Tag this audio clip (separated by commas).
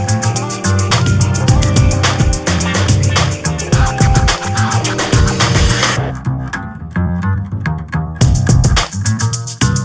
Music